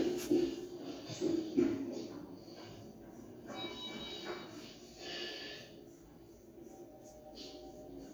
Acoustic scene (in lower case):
elevator